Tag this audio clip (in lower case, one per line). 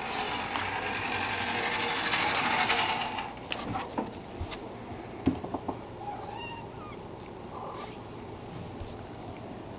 vehicle